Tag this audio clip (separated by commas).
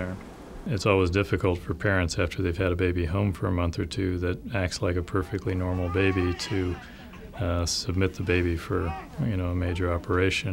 Speech